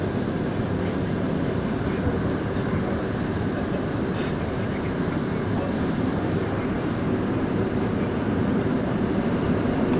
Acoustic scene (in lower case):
subway train